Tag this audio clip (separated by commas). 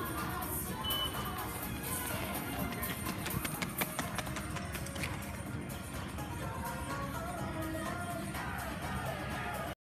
Run, Music